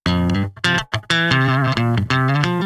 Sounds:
electric guitar
music
plucked string instrument
musical instrument
guitar

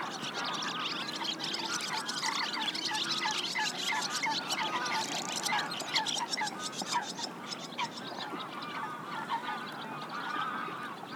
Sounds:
animal
bird
tweet
wild animals
bird call

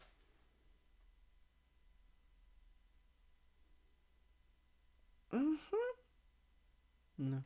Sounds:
speech
human voice

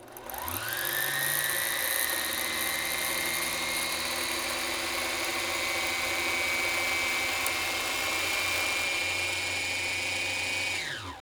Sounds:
engine
mechanisms

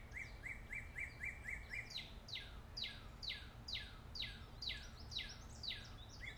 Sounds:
bird
bird vocalization
wild animals
animal

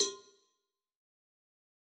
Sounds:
bell
cowbell

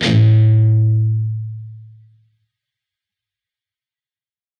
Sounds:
music
musical instrument
plucked string instrument
guitar

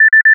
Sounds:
telephone
alarm

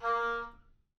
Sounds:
musical instrument
music
wind instrument

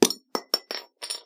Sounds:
glass

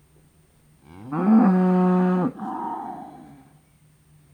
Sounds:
livestock
animal

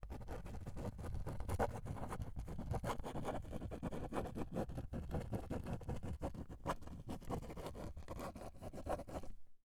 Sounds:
writing
domestic sounds

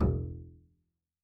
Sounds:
music
bowed string instrument
musical instrument

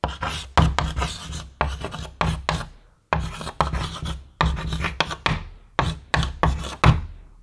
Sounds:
domestic sounds
writing

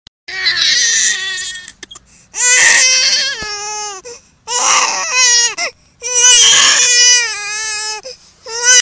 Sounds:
crying
human voice

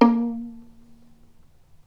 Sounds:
musical instrument
bowed string instrument
music

